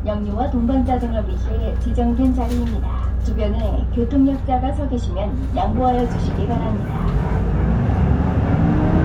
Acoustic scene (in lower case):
bus